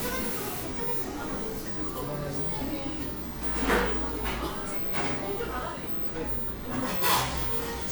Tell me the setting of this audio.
cafe